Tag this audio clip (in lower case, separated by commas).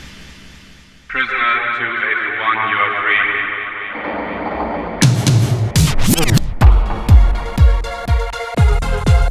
rhythm and blues, music, disco, pop music, techno, electronic music, house music